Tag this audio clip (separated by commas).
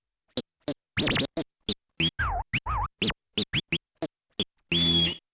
Music, Musical instrument, Scratching (performance technique)